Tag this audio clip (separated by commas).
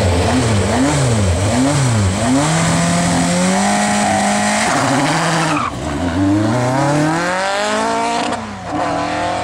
Car, Vehicle